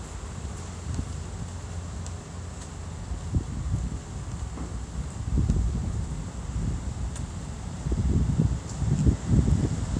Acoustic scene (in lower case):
street